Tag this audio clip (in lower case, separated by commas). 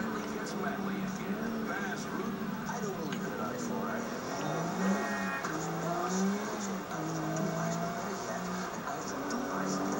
car, speech